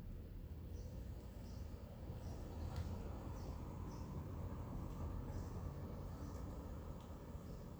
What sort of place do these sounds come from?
residential area